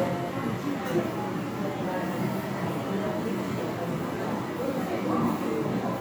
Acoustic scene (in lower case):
crowded indoor space